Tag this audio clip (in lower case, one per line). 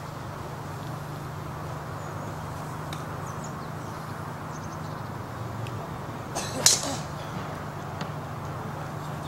golf driving